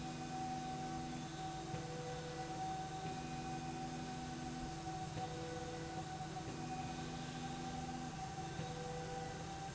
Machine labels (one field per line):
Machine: slide rail